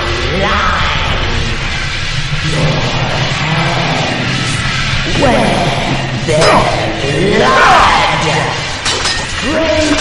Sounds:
Music, Speech

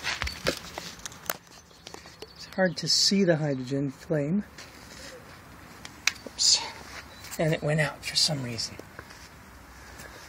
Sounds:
Speech

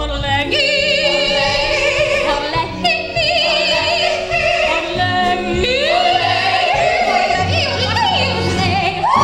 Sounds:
Music, Funny music

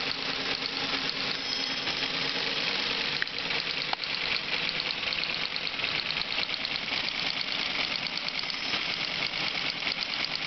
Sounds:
Typewriter

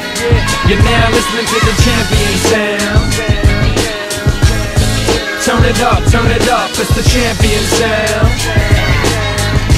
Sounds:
Music

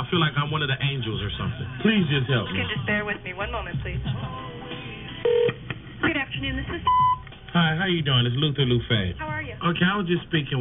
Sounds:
Speech, Music

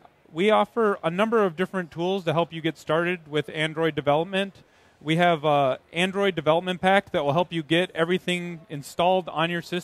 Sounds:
Speech

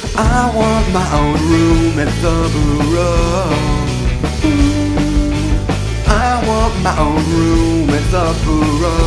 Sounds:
Music

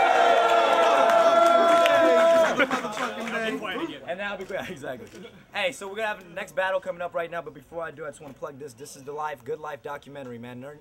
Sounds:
Speech

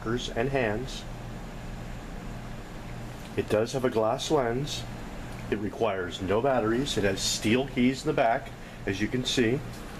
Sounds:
Speech

